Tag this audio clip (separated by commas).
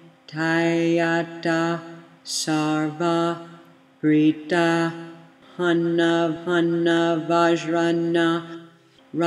Mantra